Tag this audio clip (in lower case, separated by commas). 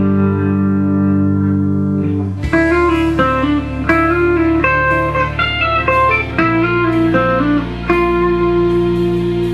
musical instrument, music, plucked string instrument, guitar, blues